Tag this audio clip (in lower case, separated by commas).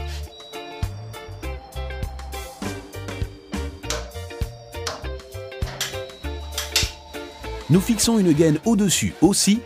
music, speech